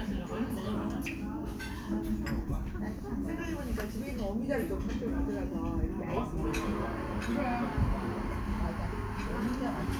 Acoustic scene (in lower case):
cafe